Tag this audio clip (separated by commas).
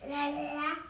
Human voice, Speech